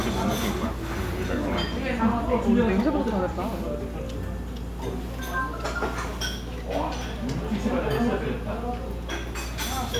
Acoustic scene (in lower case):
restaurant